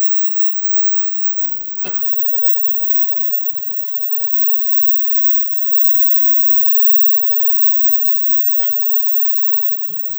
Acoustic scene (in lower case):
kitchen